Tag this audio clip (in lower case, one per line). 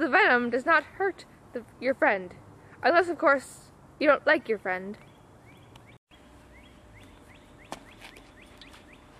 speech
outside, urban or man-made
animal